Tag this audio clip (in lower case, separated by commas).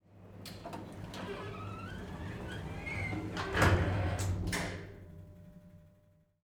home sounds, sliding door, door